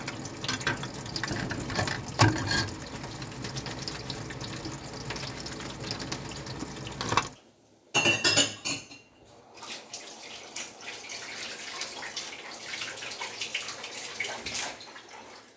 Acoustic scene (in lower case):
kitchen